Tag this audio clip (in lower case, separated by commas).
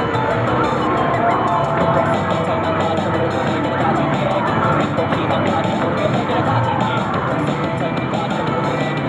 music